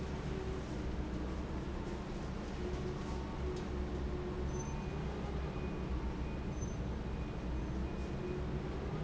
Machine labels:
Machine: fan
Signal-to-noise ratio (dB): -6 dB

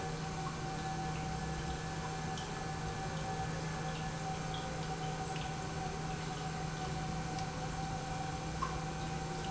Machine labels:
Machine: pump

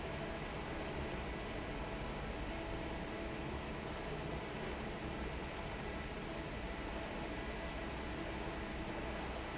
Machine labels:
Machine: fan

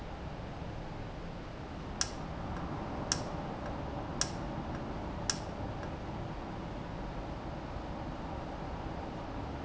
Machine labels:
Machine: valve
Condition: normal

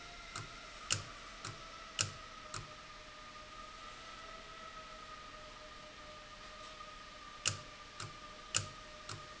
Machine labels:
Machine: valve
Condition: abnormal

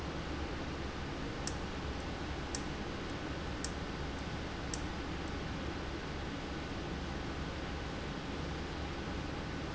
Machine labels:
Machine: valve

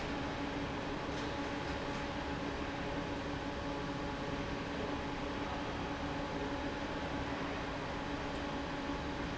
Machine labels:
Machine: fan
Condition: normal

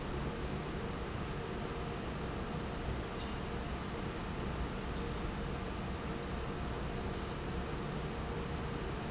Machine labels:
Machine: fan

